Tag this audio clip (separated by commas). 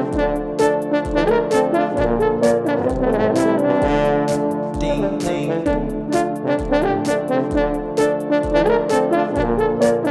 playing french horn